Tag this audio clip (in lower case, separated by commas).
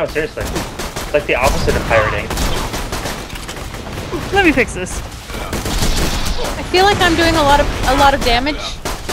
speech